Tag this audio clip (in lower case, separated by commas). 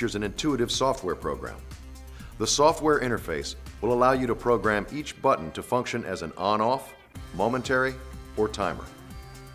speech, music